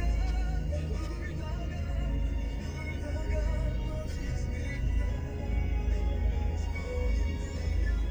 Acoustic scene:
car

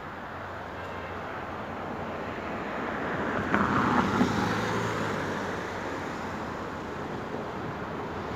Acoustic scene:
street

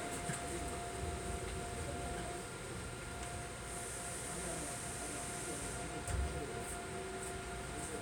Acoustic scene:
subway train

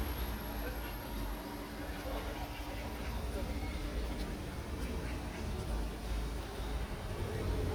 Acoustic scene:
park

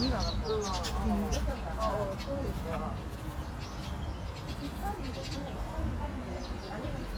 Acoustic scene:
park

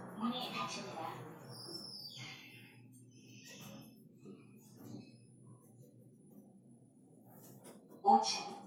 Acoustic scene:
elevator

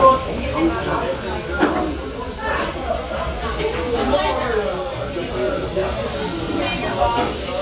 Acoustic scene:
restaurant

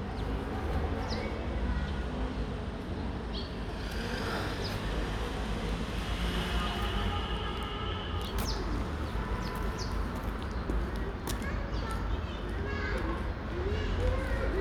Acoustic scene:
residential area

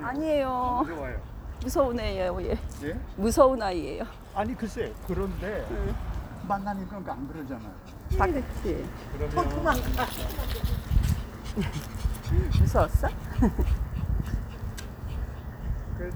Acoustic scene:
residential area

